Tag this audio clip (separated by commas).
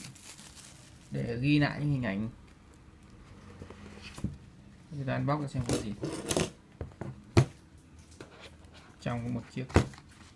Speech